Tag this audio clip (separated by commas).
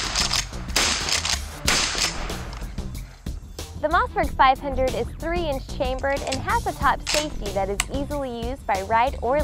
Speech, Music